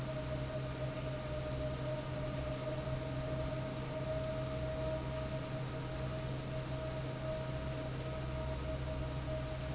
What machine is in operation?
fan